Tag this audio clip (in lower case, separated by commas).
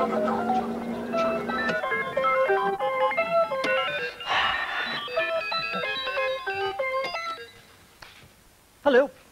music, speech